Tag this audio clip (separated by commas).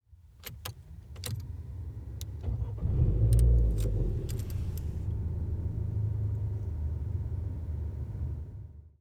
Engine, Motor vehicle (road), Car, Vehicle